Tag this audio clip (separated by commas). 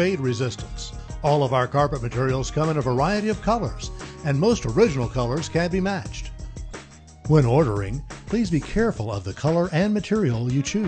Music, Speech